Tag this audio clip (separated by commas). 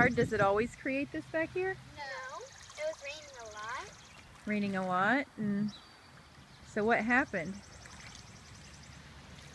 Speech